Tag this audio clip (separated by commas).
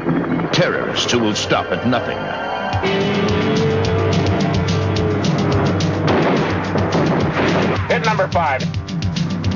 Speech, Music